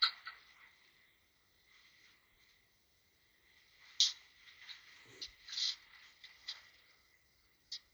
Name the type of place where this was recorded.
elevator